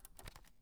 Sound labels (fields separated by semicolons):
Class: switch; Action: being turned on